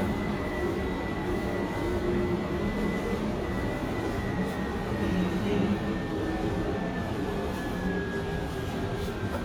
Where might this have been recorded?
in a subway station